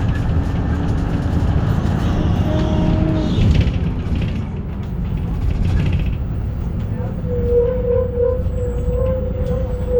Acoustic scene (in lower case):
bus